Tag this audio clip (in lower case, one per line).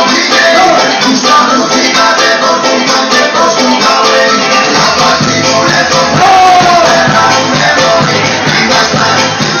music